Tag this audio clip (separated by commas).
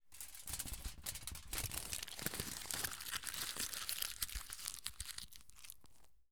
crinkling